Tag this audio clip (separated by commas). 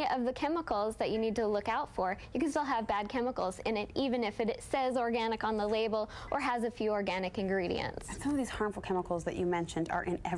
Speech